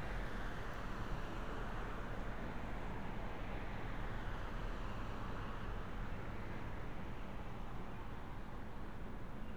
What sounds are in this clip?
background noise